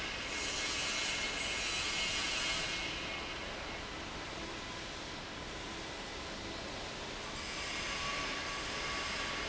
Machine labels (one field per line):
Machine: fan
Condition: abnormal